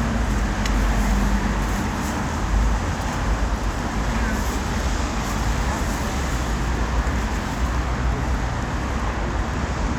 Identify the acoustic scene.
street